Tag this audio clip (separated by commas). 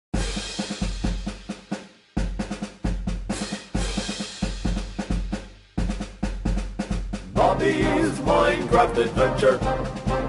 Bass drum, Drum kit, Snare drum, Cymbal, Drum, Rimshot, Percussion